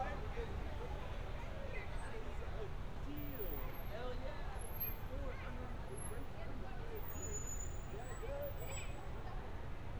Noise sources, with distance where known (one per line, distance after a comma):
person or small group talking, near